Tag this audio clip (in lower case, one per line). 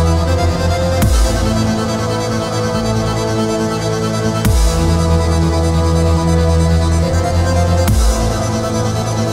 music
dubstep
electronic music